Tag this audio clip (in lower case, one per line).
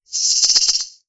music
percussion
musical instrument
rattle (instrument)